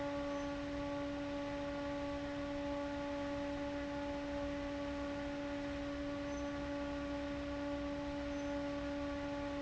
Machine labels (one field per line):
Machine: fan